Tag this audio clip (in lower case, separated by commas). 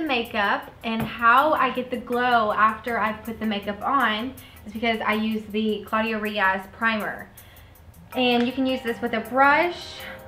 speech, music